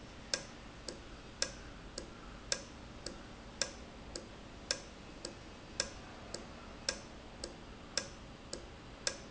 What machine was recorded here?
valve